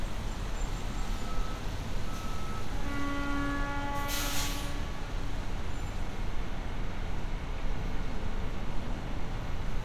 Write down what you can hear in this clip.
large-sounding engine, reverse beeper